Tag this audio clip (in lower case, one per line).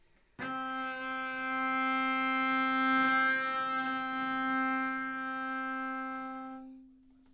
music
bowed string instrument
musical instrument